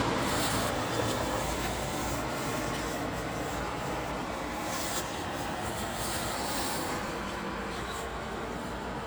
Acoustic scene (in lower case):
street